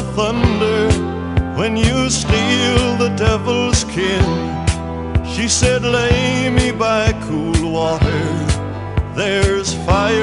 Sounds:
music

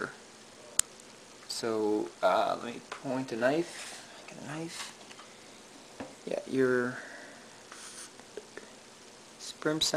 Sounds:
speech, inside a small room

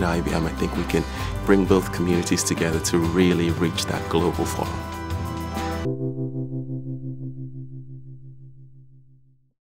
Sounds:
music, speech, inside a large room or hall

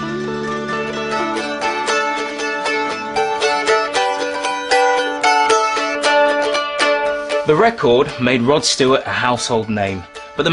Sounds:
playing mandolin

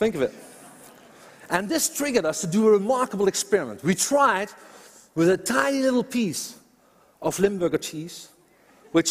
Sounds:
mosquito buzzing

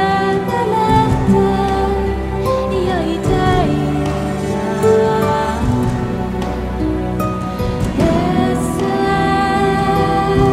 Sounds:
soundtrack music, music

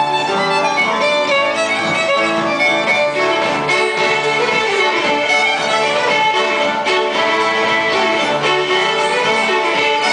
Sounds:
music, violin, musical instrument

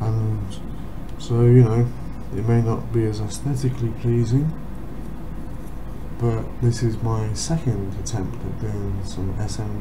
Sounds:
speech

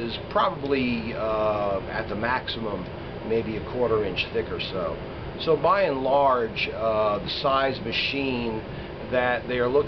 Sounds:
speech

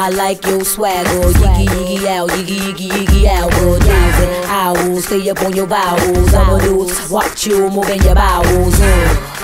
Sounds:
music

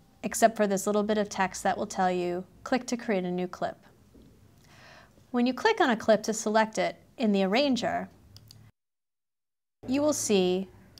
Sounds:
speech

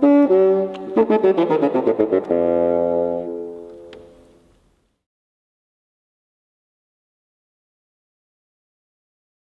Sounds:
playing bassoon

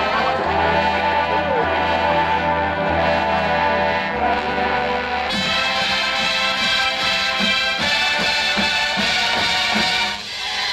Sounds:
music

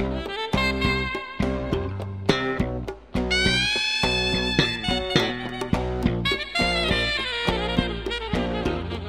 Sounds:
music

